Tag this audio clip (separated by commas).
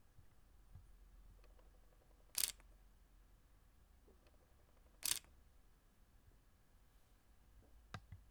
Camera, Mechanisms